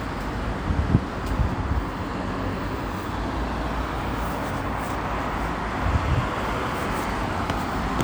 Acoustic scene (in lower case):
street